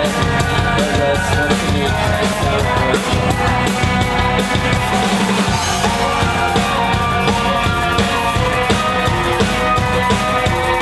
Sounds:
music

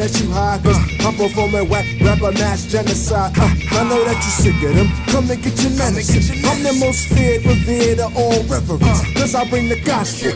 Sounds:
music, singing, rapping

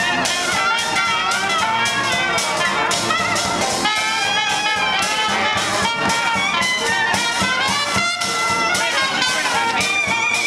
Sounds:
music

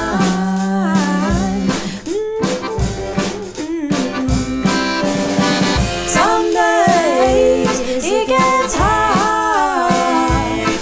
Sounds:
accordion, music

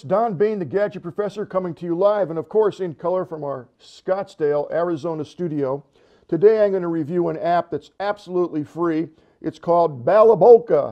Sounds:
speech

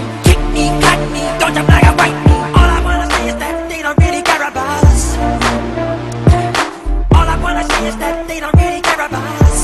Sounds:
music

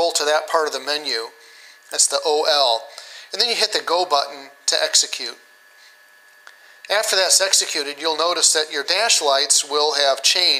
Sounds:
inside a small room, speech

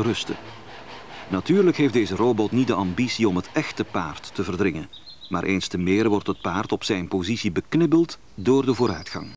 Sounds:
animal, speech

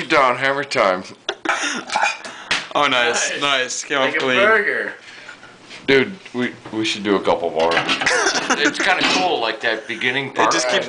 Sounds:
speech

